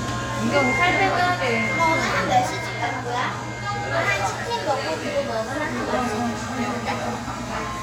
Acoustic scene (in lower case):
cafe